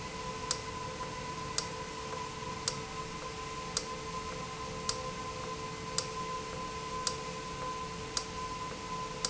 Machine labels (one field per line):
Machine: valve